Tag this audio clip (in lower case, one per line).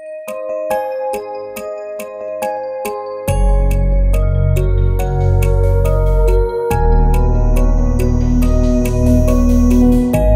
lullaby